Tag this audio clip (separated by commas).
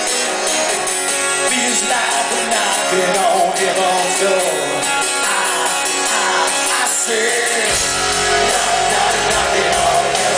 Male singing, Music